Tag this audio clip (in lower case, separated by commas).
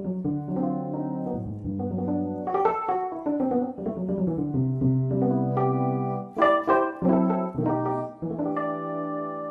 guitar, music, plucked string instrument, musical instrument